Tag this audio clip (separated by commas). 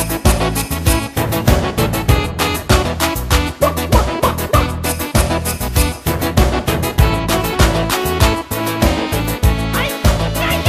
Music